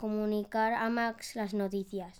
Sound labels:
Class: speech